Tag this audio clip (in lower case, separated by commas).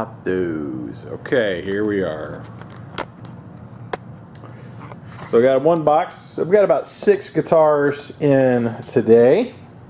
speech